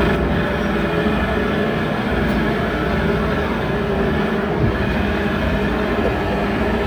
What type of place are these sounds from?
street